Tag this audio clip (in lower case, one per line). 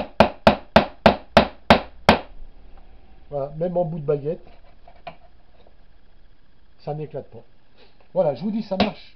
hammering nails